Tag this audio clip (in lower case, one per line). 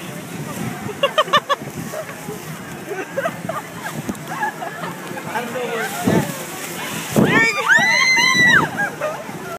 wind noise (microphone)
speech